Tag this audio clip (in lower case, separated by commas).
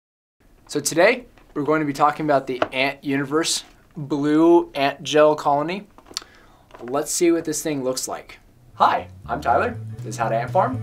speech, music